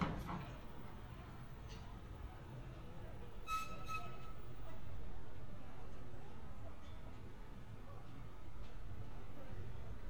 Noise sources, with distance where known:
background noise

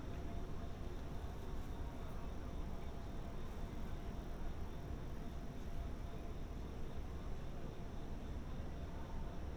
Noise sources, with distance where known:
background noise

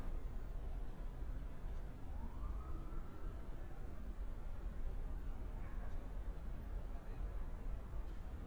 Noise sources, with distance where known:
siren, far

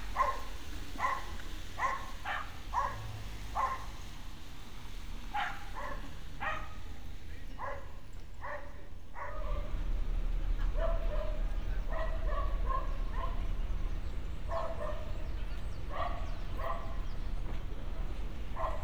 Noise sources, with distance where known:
dog barking or whining

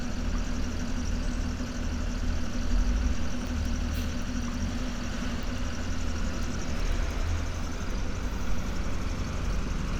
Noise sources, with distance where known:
large-sounding engine, near

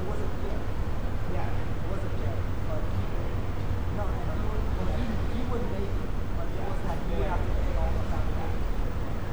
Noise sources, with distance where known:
person or small group talking, near

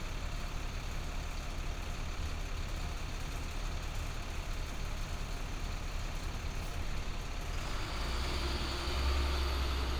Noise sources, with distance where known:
large-sounding engine, near

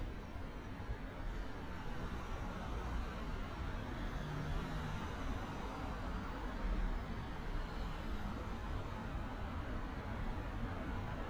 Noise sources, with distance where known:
medium-sounding engine, far

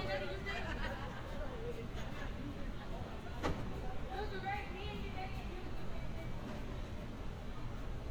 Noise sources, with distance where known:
person or small group talking
person or small group shouting

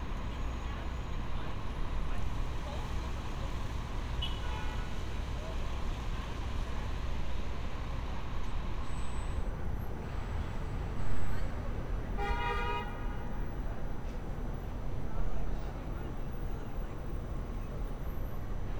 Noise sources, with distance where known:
car horn

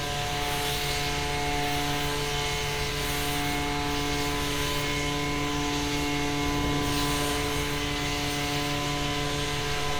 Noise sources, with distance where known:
chainsaw, near

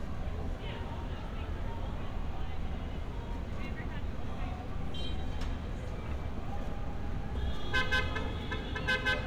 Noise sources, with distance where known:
car horn, near
person or small group talking, near

